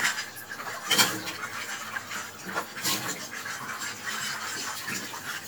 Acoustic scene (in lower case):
kitchen